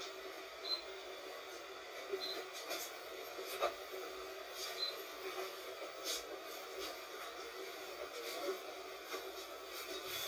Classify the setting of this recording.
bus